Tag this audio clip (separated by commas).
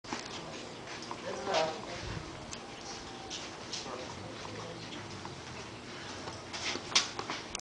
Speech, Tick, Tick-tock